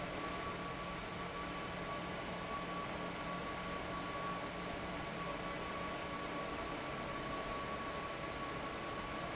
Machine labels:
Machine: fan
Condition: abnormal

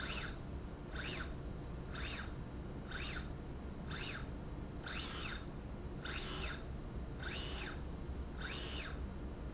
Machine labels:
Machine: slide rail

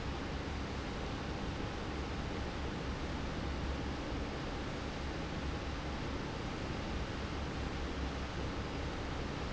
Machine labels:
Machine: fan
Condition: normal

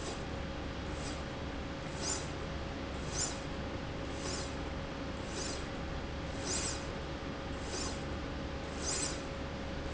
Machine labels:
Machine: slide rail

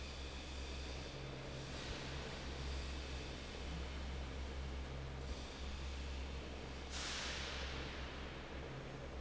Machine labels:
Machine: fan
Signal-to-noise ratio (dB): 6 dB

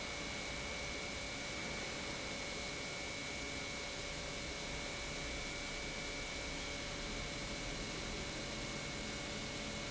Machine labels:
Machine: pump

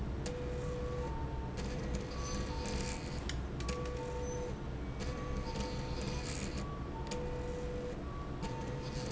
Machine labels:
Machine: slide rail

